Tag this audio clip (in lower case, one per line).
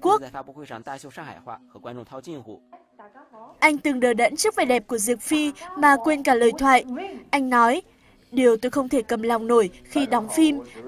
speech